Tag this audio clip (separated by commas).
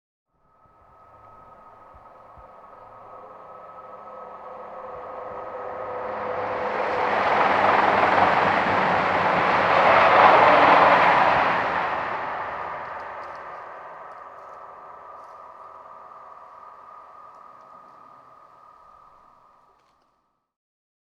Vehicle, Rail transport, Train